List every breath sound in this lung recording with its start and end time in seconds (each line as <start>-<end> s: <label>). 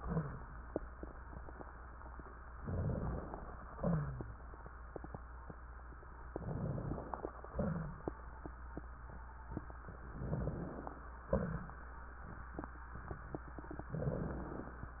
2.57-3.33 s: inhalation
2.59-3.34 s: crackles
3.78-4.42 s: exhalation
6.33-7.24 s: crackles
6.35-7.24 s: inhalation
7.54-8.12 s: exhalation
7.56-8.16 s: crackles
10.17-10.96 s: crackles
10.17-10.94 s: inhalation
11.28-11.76 s: crackles
11.30-11.76 s: exhalation
13.91-14.82 s: inhalation
13.93-14.80 s: crackles